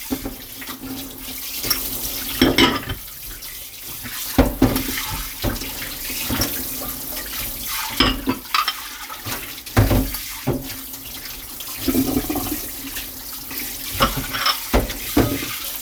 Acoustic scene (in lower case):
kitchen